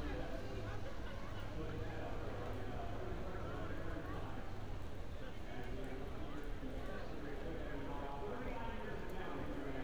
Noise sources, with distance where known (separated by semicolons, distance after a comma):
unidentified human voice